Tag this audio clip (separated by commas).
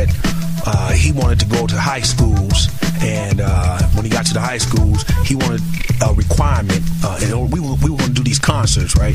Music